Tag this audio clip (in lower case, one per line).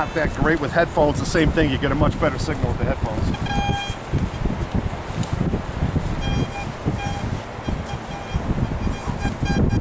speech
outside, rural or natural